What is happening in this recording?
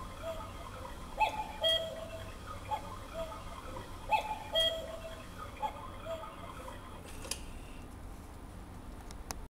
Cuckoo clock chimes